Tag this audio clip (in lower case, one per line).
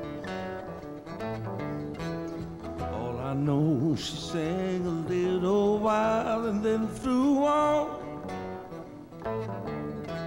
pizzicato